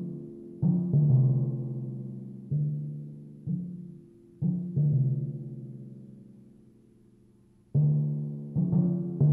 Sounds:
playing timpani

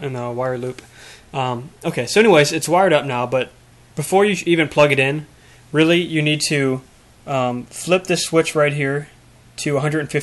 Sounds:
Speech

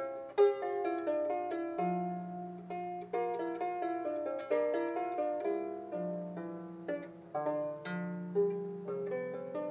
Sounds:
Music

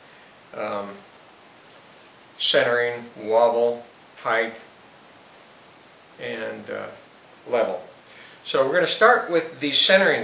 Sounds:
Speech

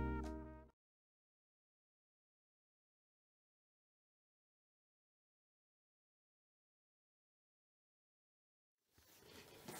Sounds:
inside a small room, Silence, Music

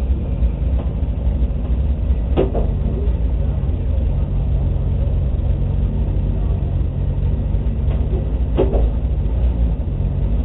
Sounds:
Vehicle, Car

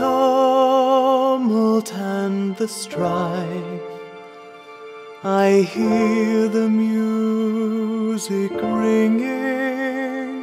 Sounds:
Music, Male singing

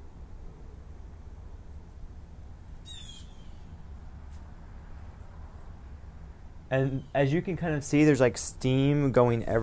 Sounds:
inside a small room, Speech

